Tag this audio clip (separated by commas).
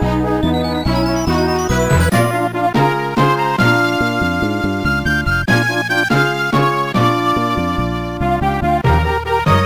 Music